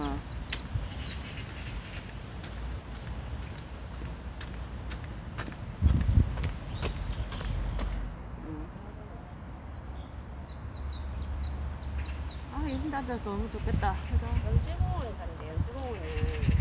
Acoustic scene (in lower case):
park